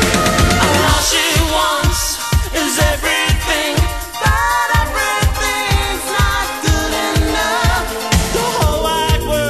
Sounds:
Exciting music, Singing, Pop music, Music

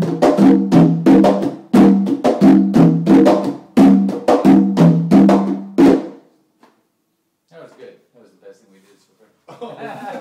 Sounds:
Drum roll

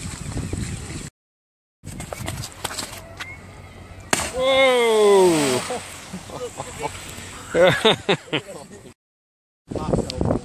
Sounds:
Speech, outside, rural or natural

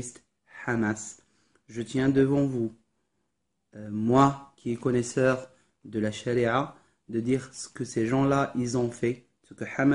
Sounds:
Speech

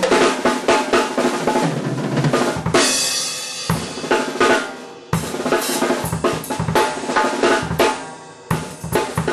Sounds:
Musical instrument, Drum kit, inside a small room, Music, Drum, Rimshot

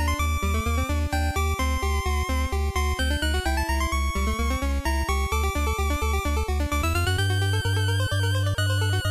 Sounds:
Video game music, Music

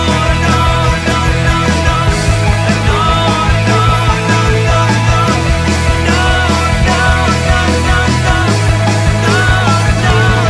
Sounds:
Singing, Music, Independent music

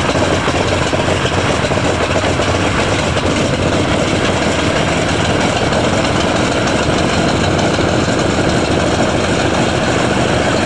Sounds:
Vehicle, Engine, Heavy engine (low frequency), Aircraft

